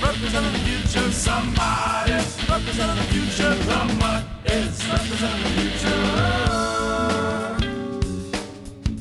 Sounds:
music

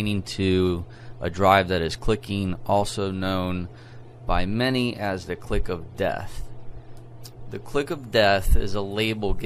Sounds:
speech

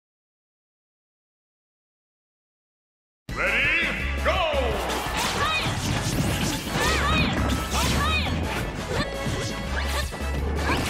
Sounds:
music, speech

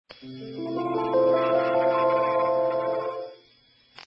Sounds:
music

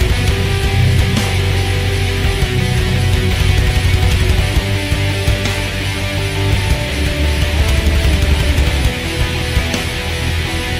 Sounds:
guitar, musical instrument, plucked string instrument, music

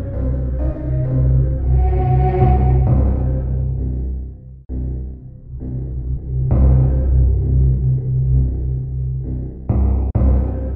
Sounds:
background music, music

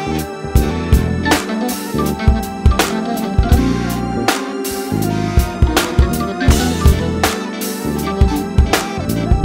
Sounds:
music

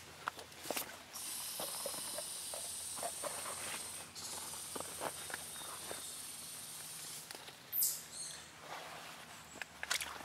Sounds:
bird, bird vocalization

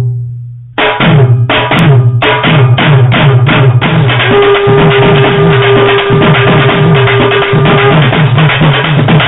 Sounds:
music

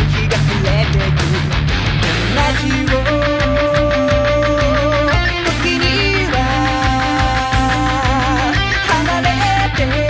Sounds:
guitar, electric guitar, strum, musical instrument, plucked string instrument, music

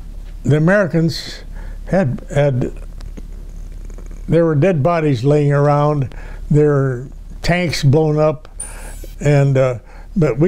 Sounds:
speech

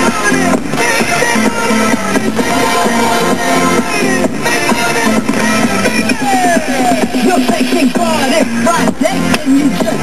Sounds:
electronic music, music, techno

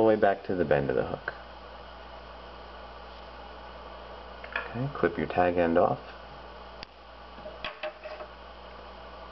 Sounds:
speech

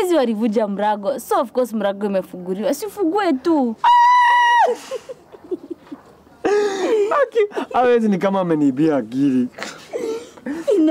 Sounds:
people sniggering, speech, laughter, snicker

